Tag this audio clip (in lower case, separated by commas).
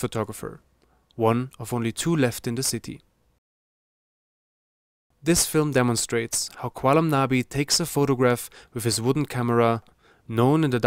speech